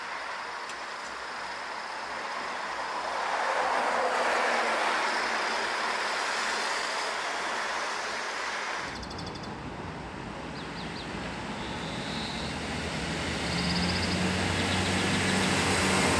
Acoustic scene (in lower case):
street